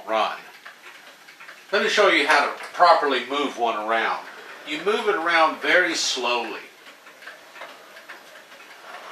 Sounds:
speech

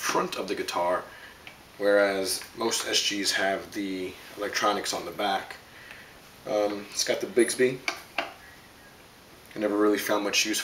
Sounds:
speech

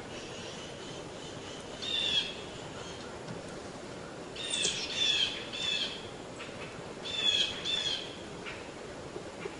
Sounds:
bird chirping, tweet, outside, rural or natural, bird call, animal

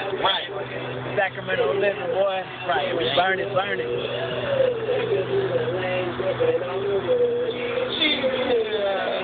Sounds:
speech

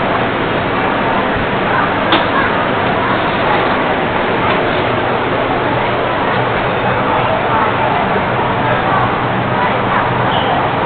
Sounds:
underground, train, vehicle

